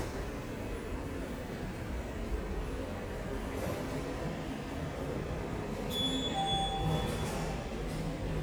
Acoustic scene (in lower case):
subway station